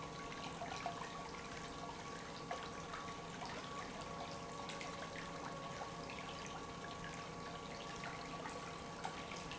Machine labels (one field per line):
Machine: pump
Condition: normal